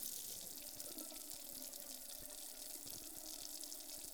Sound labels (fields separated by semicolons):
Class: water tap; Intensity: medium